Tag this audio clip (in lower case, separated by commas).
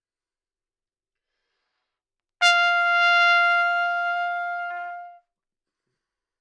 musical instrument, trumpet, brass instrument, music